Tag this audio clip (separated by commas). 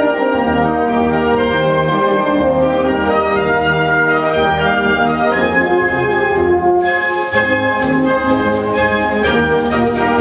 Orchestra, Music, inside a public space